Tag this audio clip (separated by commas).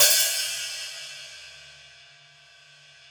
Hi-hat, Musical instrument, Cymbal, Percussion, Music